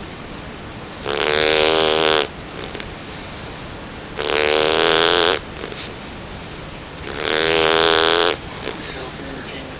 Low static and loud snoring followed by man speaking lightly